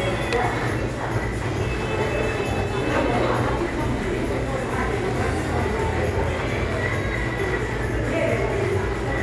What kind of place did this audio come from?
crowded indoor space